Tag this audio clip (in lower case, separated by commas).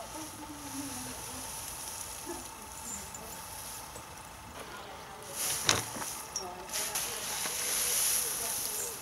speech